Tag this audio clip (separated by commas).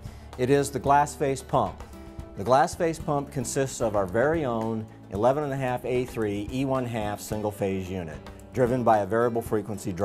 Speech, Music